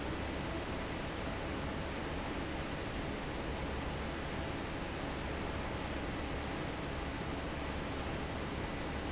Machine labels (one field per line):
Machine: fan